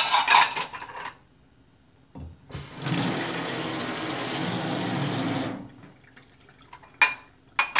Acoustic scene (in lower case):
kitchen